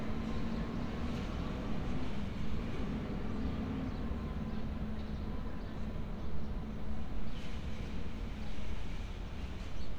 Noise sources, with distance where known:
large-sounding engine

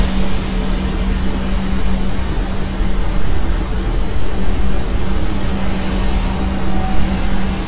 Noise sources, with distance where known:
large-sounding engine, near

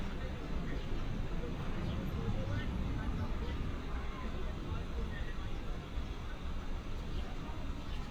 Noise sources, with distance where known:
engine of unclear size
person or small group talking, near

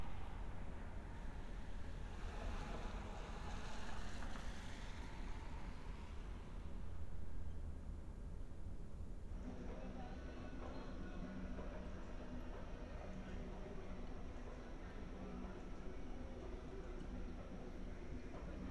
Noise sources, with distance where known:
background noise

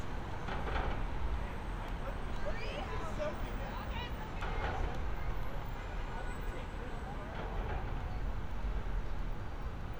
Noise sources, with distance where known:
person or small group talking

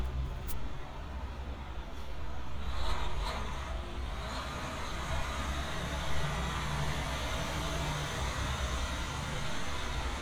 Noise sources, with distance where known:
large-sounding engine, near

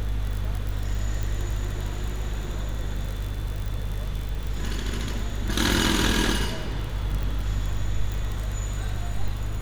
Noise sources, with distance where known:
unidentified impact machinery

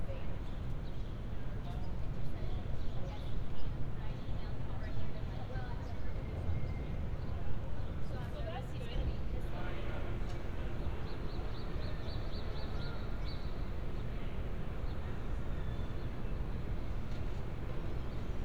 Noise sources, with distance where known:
person or small group talking, far

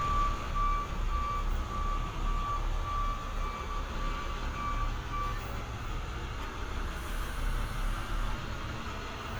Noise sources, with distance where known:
large-sounding engine, near
reverse beeper, near

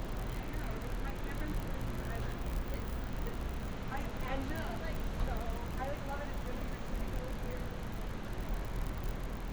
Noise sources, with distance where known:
person or small group talking, near

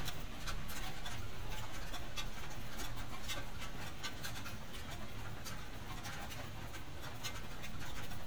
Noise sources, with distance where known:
background noise

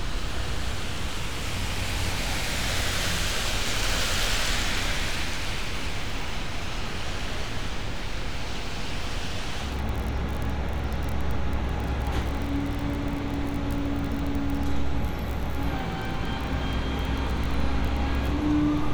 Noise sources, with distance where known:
engine of unclear size

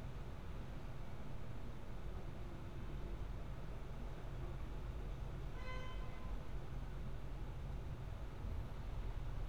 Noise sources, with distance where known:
unidentified alert signal, far

